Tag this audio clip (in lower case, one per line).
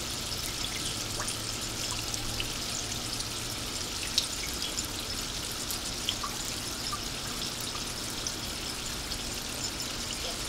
raindrop